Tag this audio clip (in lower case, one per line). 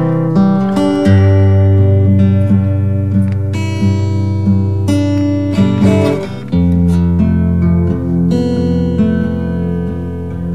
music